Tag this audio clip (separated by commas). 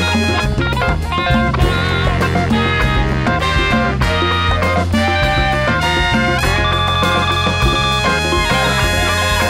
Musical instrument, Music, Jazz